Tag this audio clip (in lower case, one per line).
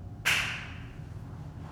hands
clapping